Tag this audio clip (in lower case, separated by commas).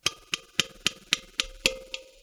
tap